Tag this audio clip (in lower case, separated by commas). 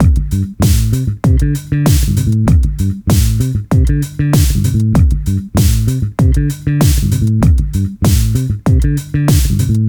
guitar, music, plucked string instrument, bass guitar, musical instrument